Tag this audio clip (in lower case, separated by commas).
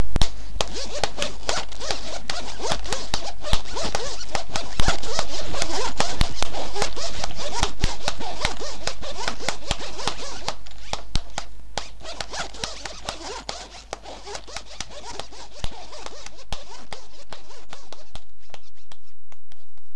zipper (clothing), home sounds